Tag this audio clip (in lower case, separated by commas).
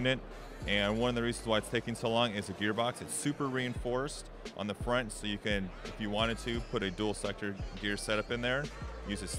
music, speech